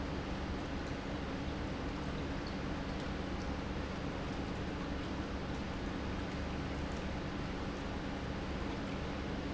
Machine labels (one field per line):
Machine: pump